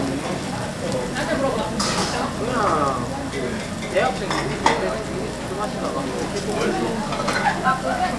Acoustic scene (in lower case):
restaurant